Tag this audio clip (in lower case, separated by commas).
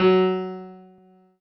musical instrument, piano, music, keyboard (musical)